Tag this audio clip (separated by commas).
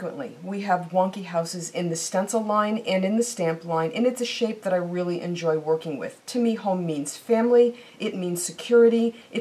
Speech